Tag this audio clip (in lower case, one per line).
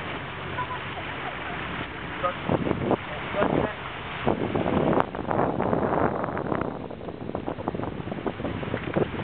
speech
splash